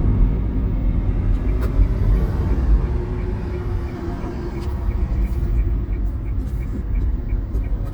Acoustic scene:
car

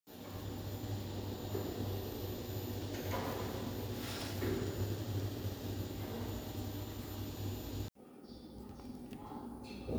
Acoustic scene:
elevator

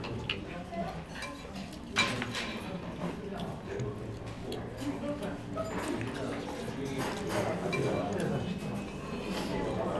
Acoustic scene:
crowded indoor space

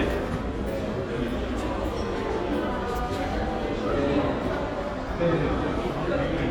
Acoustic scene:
crowded indoor space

